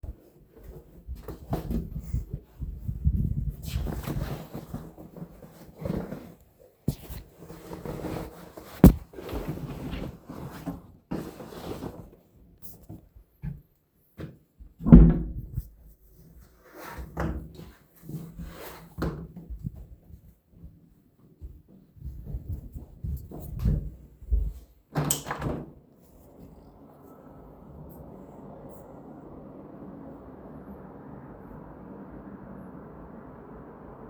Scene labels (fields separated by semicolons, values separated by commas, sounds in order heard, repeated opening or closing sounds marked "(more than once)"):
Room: hallway, living room; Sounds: wardrobe or drawer (more than once), footsteps, window